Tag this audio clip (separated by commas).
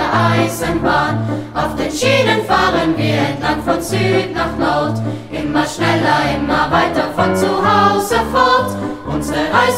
Choir, Music, Female singing